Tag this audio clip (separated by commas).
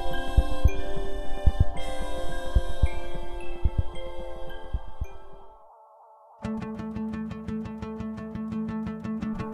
Music